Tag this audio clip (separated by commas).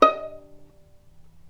Musical instrument, Bowed string instrument, Music